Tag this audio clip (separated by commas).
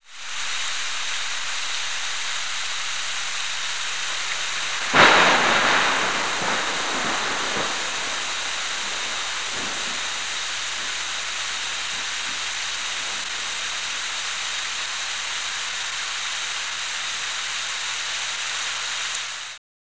Thunder, Thunderstorm, Rain, Water